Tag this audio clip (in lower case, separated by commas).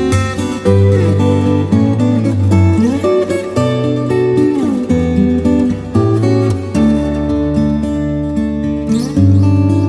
music, musical instrument, acoustic guitar, plucked string instrument